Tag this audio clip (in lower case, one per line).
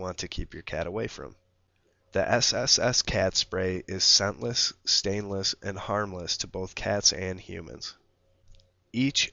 speech